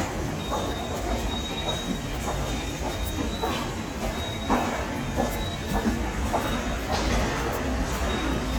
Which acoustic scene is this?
subway station